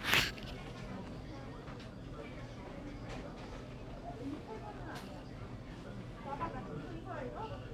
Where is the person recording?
in a crowded indoor space